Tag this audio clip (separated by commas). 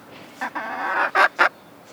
Fowl, rooster, livestock, Animal